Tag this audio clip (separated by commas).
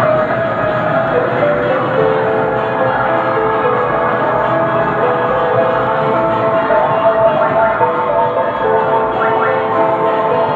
Music